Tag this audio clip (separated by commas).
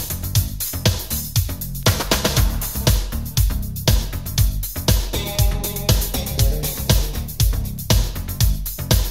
Music